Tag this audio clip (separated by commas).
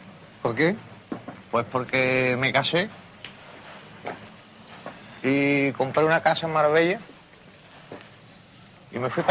Speech